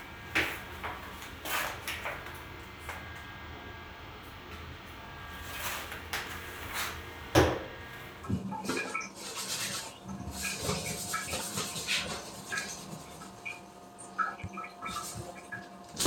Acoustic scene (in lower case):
restroom